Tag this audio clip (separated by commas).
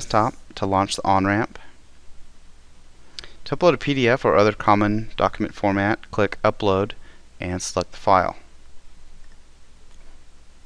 Speech